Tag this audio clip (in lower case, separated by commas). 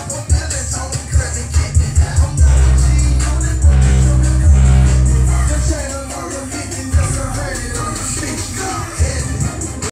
music, inside a small room